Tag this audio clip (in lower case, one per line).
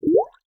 water
gurgling